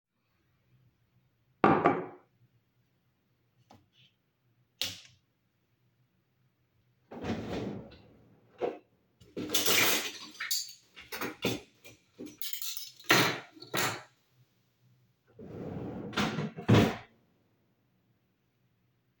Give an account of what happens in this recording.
I placed my mug on the cabinet, then turned on the light, I opened the first drawer and start searching for a knife and a spoon. after i find it, i placed it on the cabinet and close the drawer.